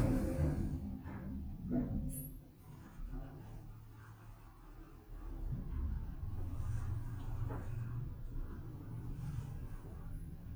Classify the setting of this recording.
elevator